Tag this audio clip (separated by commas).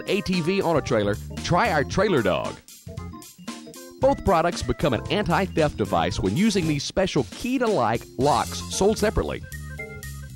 Music, Speech